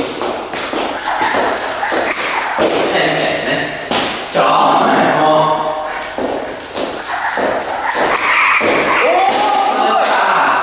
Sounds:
rope skipping

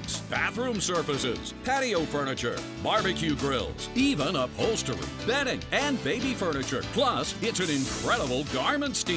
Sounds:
Hiss, Steam

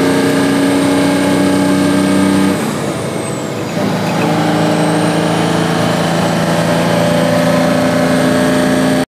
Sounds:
Car, Air brake, Vehicle

